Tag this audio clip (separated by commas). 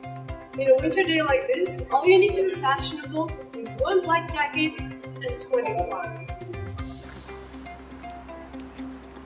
Music, Speech